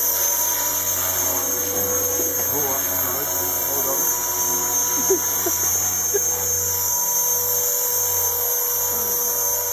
A high pitched high frequent motor running, a man speaks a woman laughs